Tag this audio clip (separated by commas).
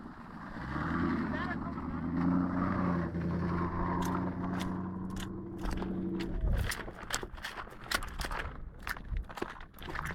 Vehicle, outside, rural or natural, Car, Speech